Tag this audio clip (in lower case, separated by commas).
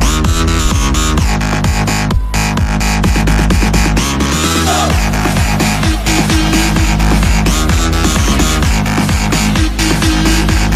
music